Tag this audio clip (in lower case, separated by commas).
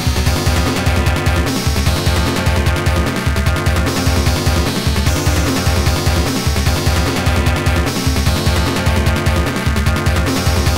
music